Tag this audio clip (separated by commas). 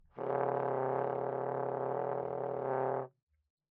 Brass instrument, Music, Musical instrument